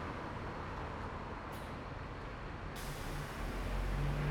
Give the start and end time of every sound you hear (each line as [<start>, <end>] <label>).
[0.00, 0.15] car
[0.00, 0.15] car wheels rolling
[0.00, 0.90] motorcycle
[0.00, 0.90] motorcycle engine accelerating
[0.00, 2.53] bus engine idling
[0.00, 4.32] bus
[1.33, 1.88] bus compressor
[2.57, 4.24] bus compressor
[2.60, 4.32] bus engine accelerating
[3.40, 4.32] car
[3.40, 4.32] car wheels rolling